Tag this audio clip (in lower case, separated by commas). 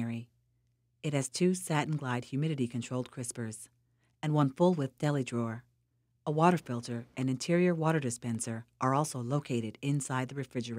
speech